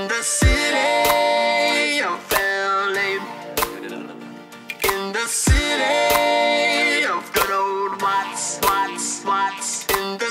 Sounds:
music, dubstep, electronic music

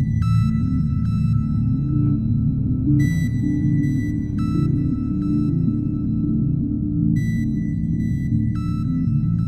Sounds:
electronic music, ambient music, music

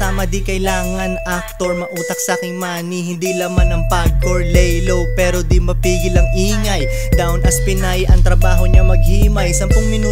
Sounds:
music

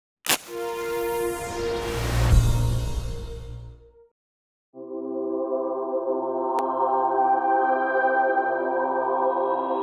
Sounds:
ambient music, music

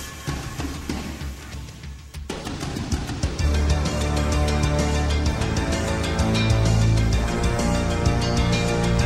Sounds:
music

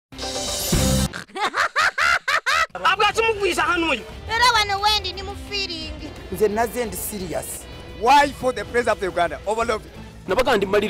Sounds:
speech, music

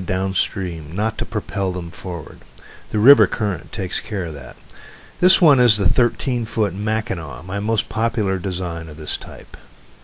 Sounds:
speech, speech synthesizer

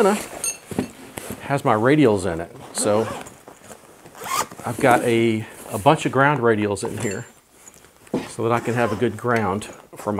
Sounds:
speech

